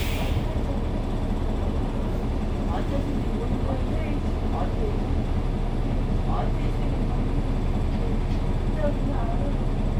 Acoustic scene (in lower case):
bus